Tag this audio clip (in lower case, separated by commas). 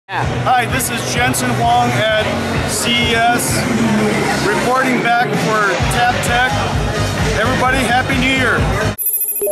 speech, music